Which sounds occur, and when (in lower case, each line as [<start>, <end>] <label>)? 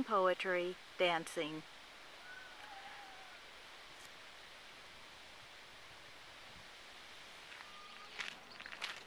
[0.01, 9.05] wind
[0.05, 0.70] female speech
[0.91, 1.60] female speech
[2.17, 3.43] bird vocalization
[3.92, 4.07] footsteps
[7.47, 8.06] bird vocalization
[8.11, 8.38] footsteps
[8.55, 9.05] footsteps